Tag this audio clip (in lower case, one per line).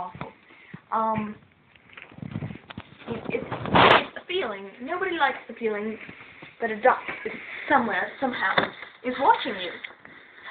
speech